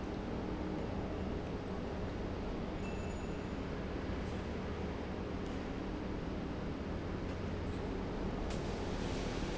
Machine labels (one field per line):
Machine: pump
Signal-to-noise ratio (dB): -6 dB